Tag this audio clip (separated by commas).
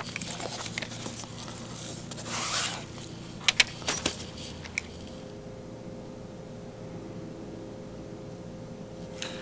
Speech